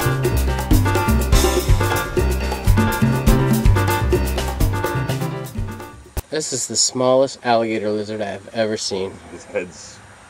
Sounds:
music, speech

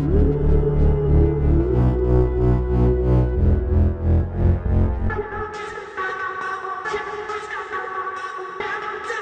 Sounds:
dubstep, music

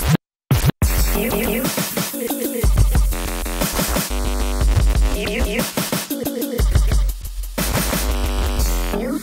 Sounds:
electronic music, scratching (performance technique), music, hip hop music, house music

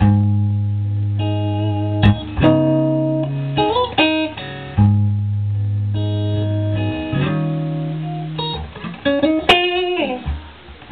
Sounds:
electric guitar, strum, music, plucked string instrument, acoustic guitar, guitar, musical instrument

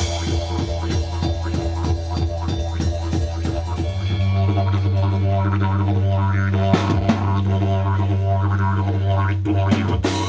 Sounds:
music, didgeridoo

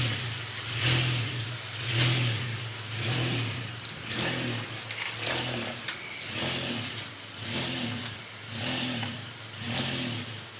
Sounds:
vehicle, car

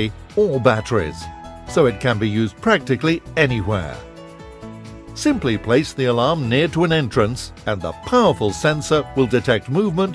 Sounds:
speech, music

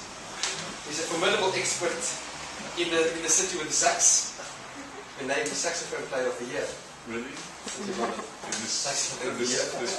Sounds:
speech

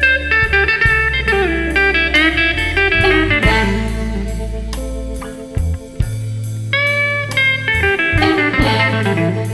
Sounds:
music

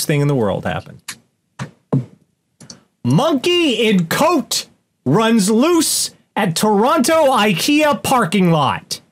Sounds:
speech, inside a small room

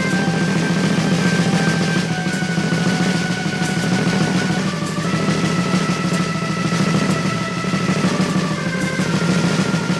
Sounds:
music

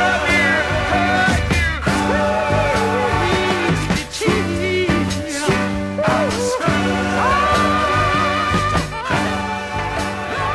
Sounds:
music, soul music

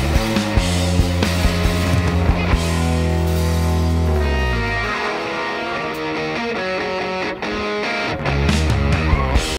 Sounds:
echo, music

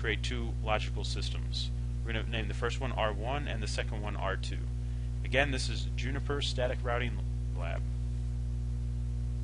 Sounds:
speech

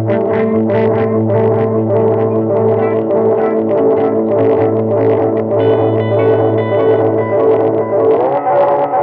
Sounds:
distortion, plucked string instrument, guitar, effects unit, music

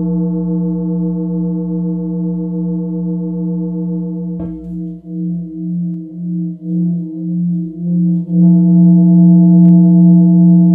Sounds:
singing bowl

